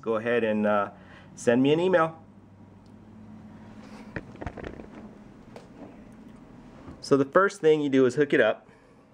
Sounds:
speech

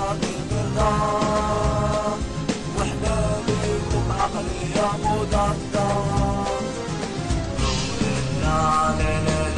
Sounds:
music

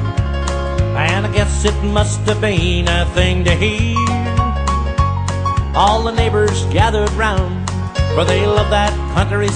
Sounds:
music

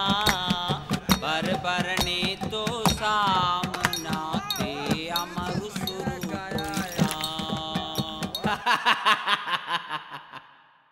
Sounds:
speech
music

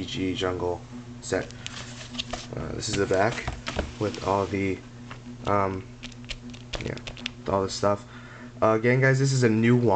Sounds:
speech

